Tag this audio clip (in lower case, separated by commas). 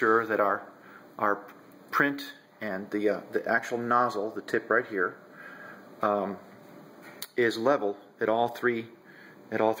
speech